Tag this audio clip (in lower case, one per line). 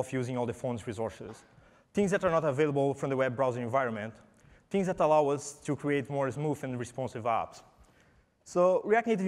speech